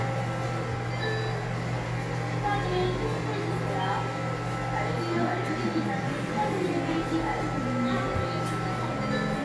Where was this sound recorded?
in a cafe